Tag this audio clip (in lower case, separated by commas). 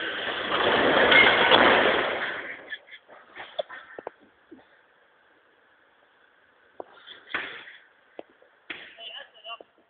speech, vehicle